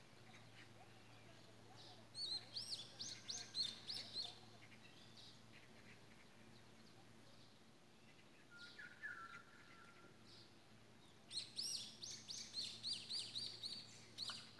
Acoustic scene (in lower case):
park